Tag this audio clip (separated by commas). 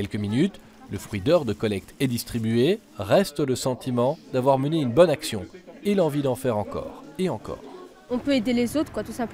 Speech